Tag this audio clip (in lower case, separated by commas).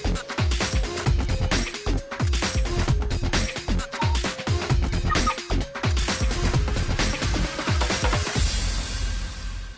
music